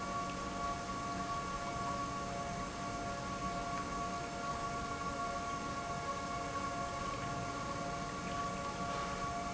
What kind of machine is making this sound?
pump